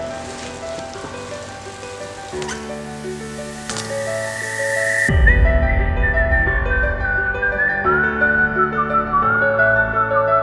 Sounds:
Tender music, Music

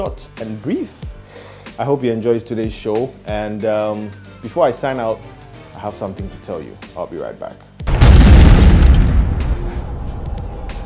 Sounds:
Speech, Music, Gunshot

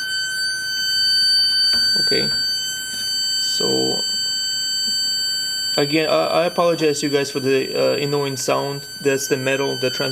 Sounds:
Speech, inside a small room

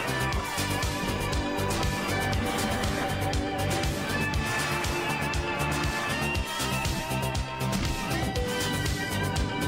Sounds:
Music

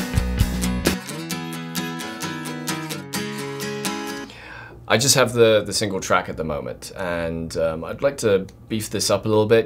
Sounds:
Musical instrument, Speech, Music, Guitar

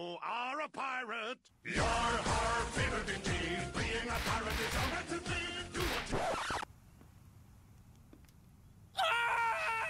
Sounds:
Music, Speech

